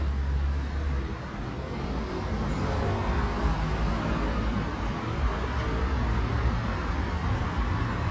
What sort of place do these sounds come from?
street